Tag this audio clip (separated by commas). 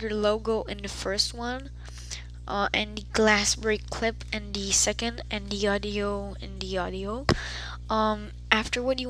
Speech